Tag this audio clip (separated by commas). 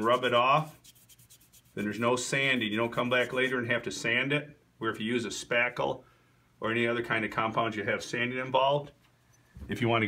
Speech